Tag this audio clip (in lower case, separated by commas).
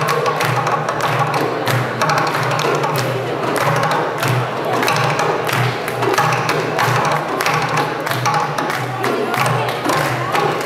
music, classical music